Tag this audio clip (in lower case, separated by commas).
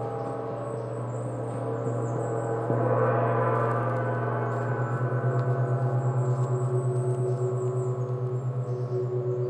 gong